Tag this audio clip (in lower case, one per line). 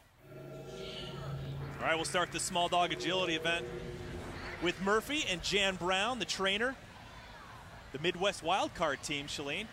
speech